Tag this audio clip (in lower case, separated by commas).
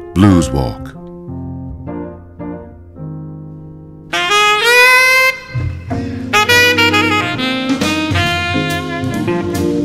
speech, blues, music